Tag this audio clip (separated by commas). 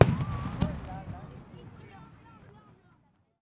Fireworks, Explosion